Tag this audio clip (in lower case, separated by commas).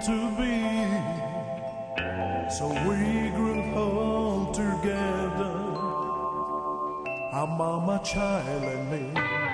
music